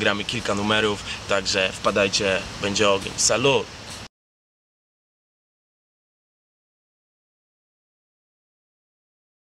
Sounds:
speech

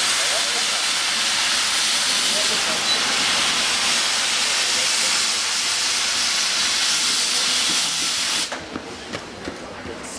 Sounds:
train, train wagon, rail transport

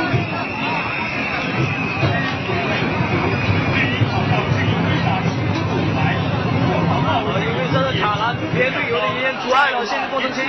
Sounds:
run, outside, urban or man-made, crowd, speech

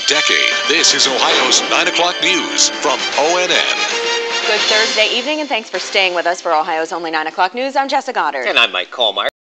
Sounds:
speech

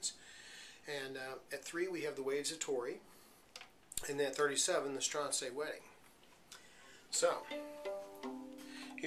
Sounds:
musical instrument, speech, music

